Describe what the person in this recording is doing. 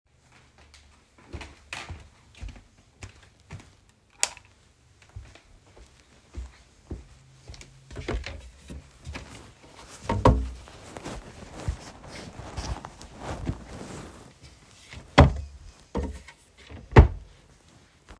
I walk from the living room to my bedroom and turn on the lights when I enter the room. I walk to a drawer, open it and take out a shirt. Then I close the door again.